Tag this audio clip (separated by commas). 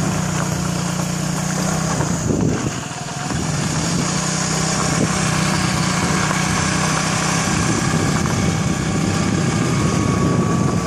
Motorcycle, outside, rural or natural, Vehicle